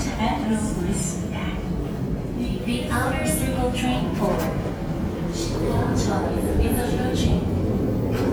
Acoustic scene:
subway station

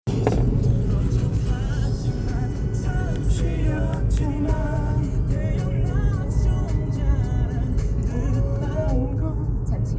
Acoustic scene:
car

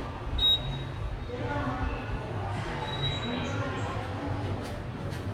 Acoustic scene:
subway station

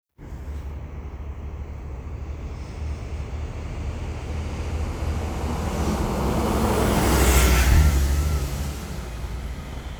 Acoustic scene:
street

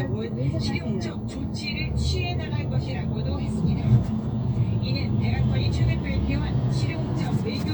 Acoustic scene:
car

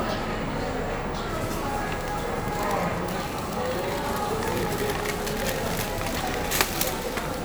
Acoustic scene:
cafe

